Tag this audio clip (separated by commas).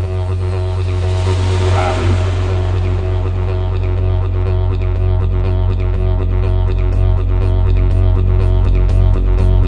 Music